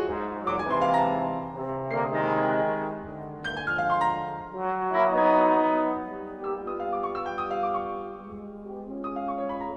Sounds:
orchestra, brass instrument, inside a large room or hall, trumpet, keyboard (musical), musical instrument, piano, music

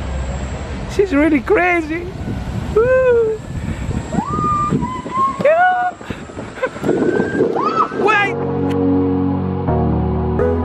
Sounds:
speech, music

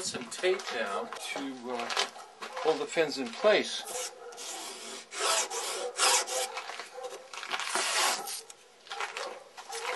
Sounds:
outside, rural or natural, speech

